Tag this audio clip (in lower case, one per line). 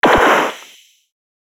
explosion
gunshot